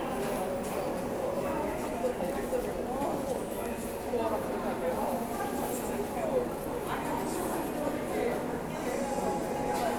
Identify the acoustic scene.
subway station